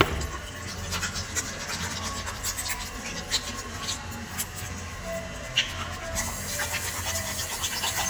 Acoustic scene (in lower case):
restroom